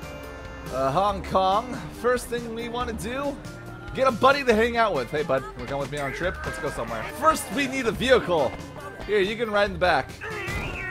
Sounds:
speech, music

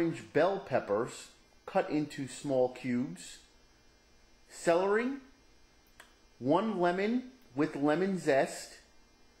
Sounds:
speech

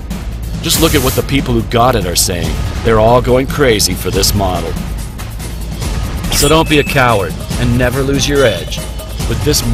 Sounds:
speech, music

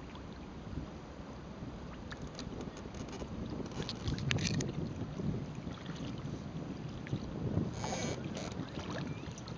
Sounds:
vehicle, water vehicle

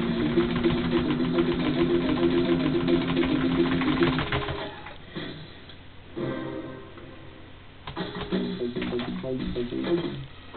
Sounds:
music

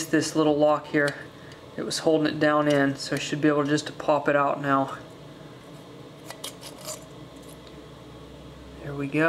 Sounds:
speech

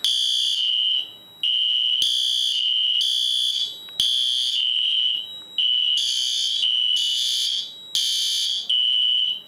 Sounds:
smoke detector, fire alarm

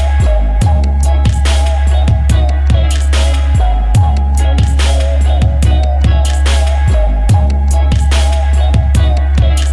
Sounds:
music

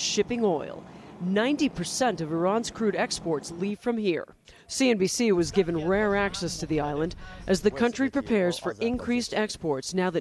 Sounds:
speech

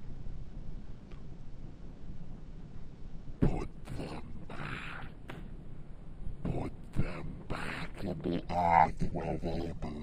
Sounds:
sound effect

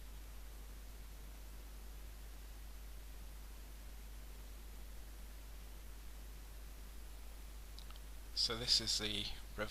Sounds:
outside, rural or natural, silence, speech

